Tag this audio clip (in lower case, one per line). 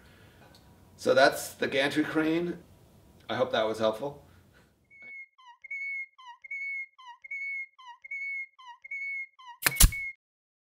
speech